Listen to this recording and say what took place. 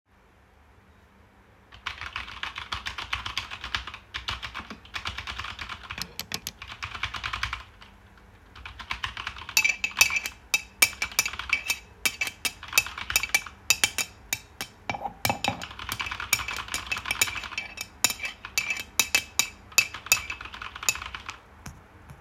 I was stirring the tea in my mug while typing.